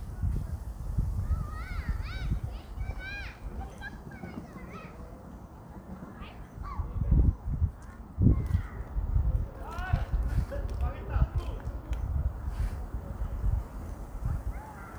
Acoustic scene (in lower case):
park